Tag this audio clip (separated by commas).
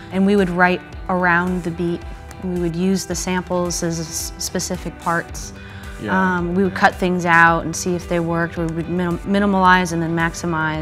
Plucked string instrument, Music, Electric guitar, Guitar, Speech, Musical instrument